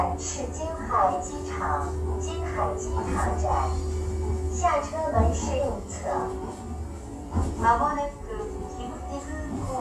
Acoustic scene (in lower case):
subway train